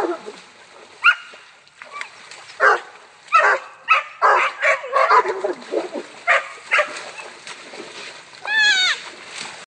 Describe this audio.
Dogs bark, some splashing